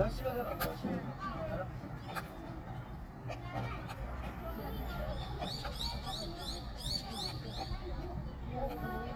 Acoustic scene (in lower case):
park